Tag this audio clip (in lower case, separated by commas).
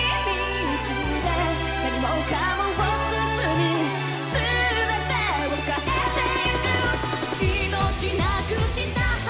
singing, music